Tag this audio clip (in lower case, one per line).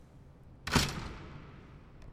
domestic sounds
door
slam